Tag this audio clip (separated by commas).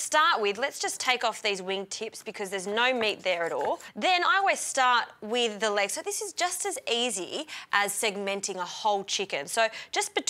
Speech